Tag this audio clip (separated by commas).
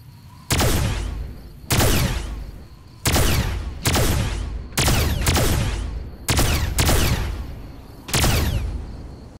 Sound effect